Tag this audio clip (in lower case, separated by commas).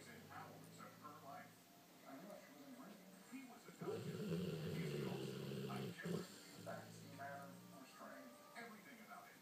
dog, pets, animal, speech